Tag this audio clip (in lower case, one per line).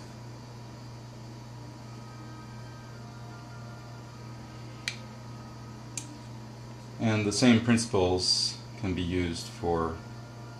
speech